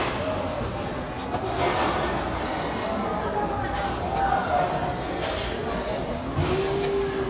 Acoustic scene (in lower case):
crowded indoor space